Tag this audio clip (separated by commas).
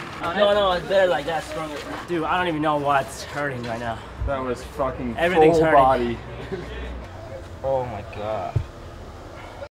Speech